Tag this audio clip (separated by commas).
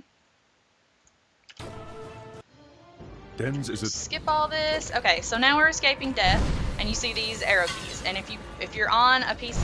Music, Speech